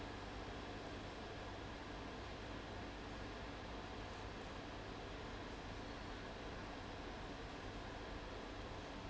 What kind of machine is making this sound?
fan